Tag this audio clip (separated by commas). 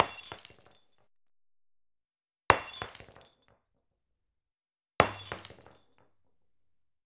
Glass, Shatter